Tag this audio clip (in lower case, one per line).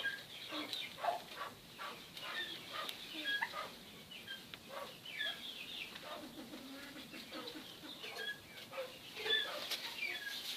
pheasant crowing